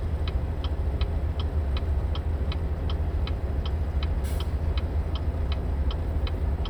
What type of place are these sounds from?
car